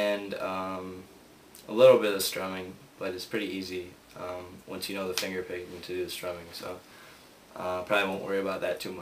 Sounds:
Speech

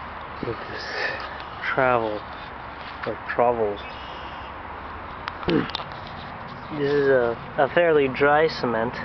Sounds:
Speech

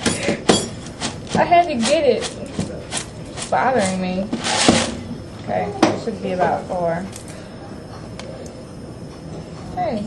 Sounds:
inside a small room, Speech

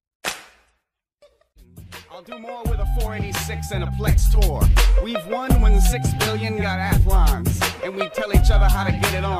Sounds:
Music, Rapping

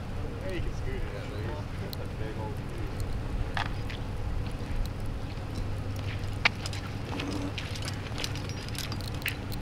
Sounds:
Speech

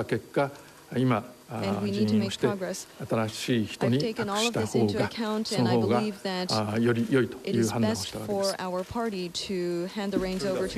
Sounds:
monologue, woman speaking, man speaking, Speech

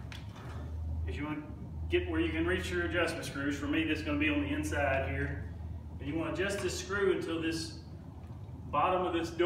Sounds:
Speech

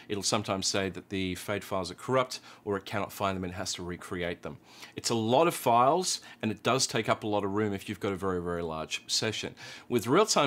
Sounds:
Speech

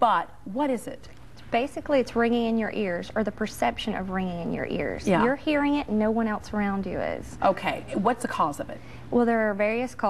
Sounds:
Speech

